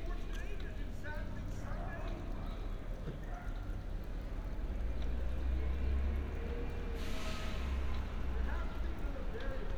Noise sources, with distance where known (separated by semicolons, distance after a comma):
large-sounding engine, far; person or small group shouting, far